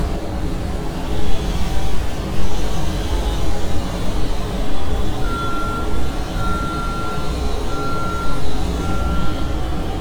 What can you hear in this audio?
reverse beeper